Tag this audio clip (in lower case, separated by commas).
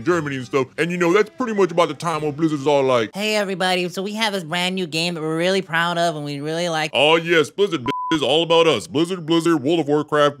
speech